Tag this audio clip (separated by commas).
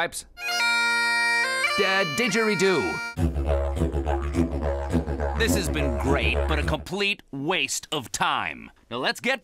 playing didgeridoo